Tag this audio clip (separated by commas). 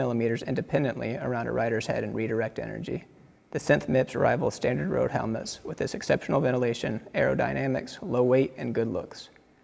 Speech